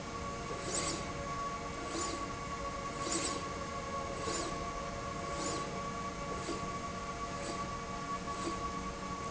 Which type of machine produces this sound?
slide rail